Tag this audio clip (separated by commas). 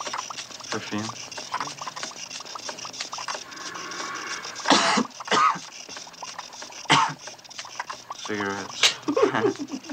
Speech